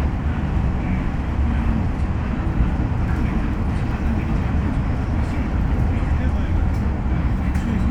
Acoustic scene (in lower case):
bus